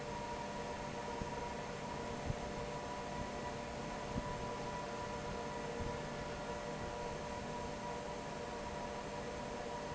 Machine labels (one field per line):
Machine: fan